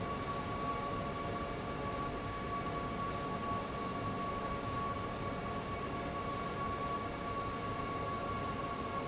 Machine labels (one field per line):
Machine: fan